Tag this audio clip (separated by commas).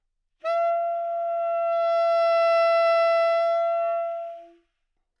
Music, Musical instrument, Wind instrument